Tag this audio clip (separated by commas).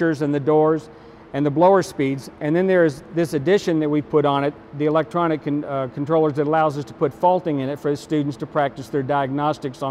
Speech